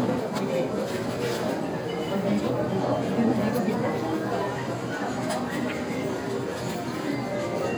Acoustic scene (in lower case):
crowded indoor space